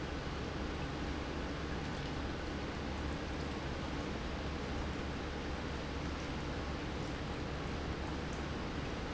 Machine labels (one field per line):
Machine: pump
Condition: normal